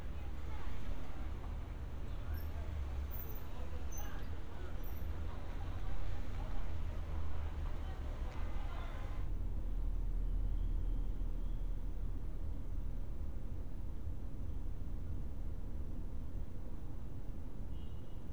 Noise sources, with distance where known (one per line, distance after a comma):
background noise